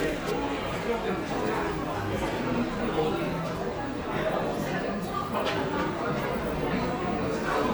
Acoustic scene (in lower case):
crowded indoor space